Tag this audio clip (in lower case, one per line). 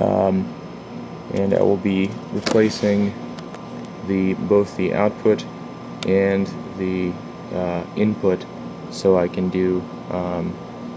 speech